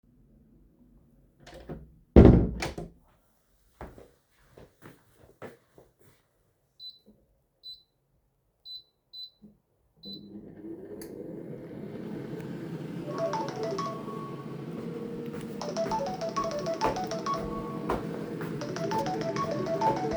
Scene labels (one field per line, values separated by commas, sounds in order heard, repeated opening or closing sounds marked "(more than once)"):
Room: hallway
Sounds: door, footsteps, microwave, phone ringing